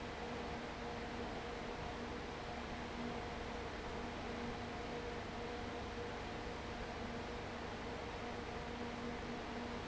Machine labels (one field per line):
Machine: fan